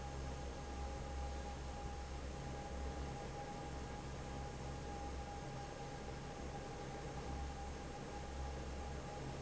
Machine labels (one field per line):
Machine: fan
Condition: normal